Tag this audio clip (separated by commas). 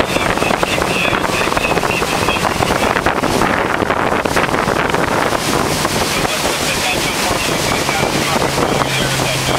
sailing, Speech, sailing ship